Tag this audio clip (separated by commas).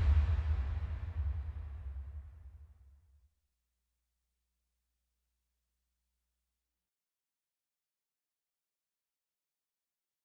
Silence